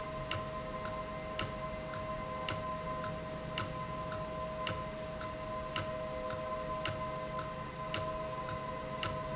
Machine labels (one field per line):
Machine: valve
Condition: abnormal